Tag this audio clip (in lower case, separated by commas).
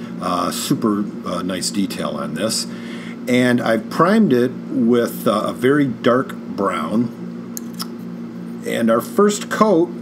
speech